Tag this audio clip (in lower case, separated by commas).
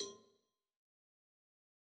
bell, cowbell